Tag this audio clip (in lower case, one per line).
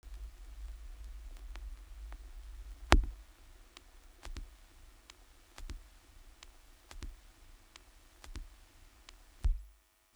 crackle